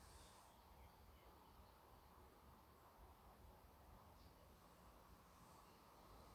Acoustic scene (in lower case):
park